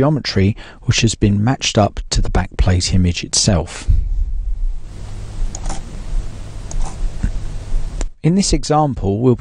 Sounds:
speech

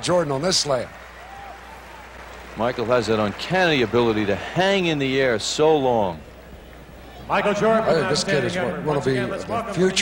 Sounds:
speech

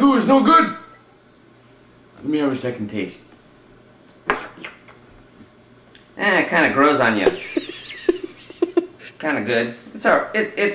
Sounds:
speech

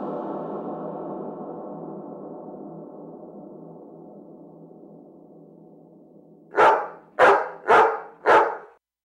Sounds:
music

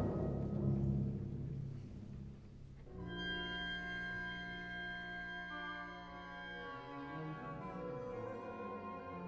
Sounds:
music
orchestra
timpani
brass instrument

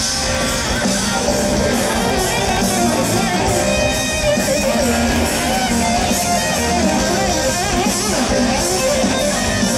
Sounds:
guitar
music
electric guitar
plucked string instrument
musical instrument
strum

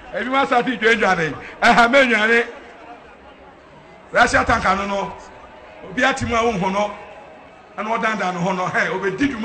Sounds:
speech

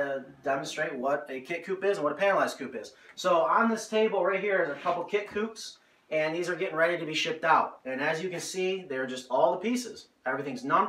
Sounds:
speech

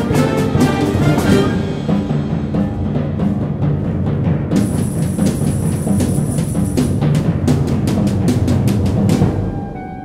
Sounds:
timpani
orchestra
music

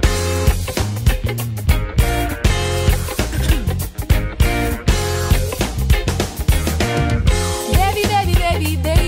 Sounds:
music

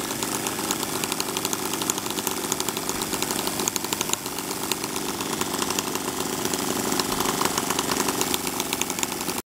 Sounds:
medium engine (mid frequency)
idling

